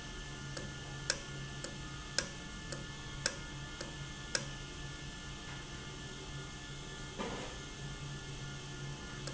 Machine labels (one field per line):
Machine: valve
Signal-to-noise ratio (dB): 0 dB